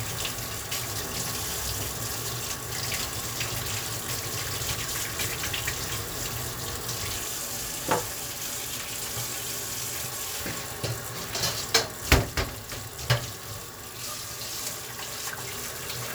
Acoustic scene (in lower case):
kitchen